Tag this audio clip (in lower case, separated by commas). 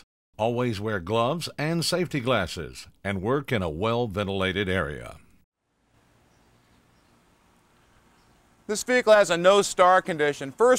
speech